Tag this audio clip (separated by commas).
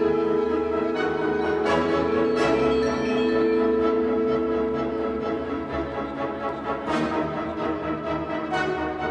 Musical instrument, Music, Orchestra, Bowed string instrument